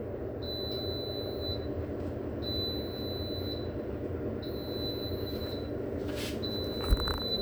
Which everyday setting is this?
kitchen